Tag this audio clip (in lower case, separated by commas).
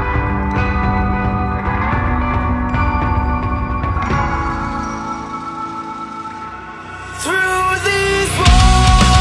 jazz, rhythm and blues, music